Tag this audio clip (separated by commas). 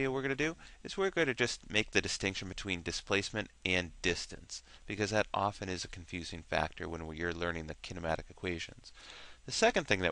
Speech